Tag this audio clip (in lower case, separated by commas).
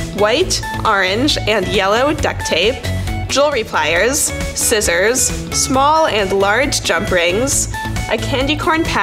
speech, music